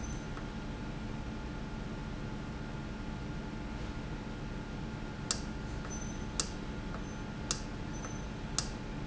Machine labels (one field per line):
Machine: valve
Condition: normal